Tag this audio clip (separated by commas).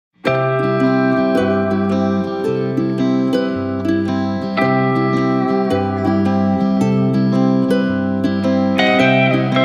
Music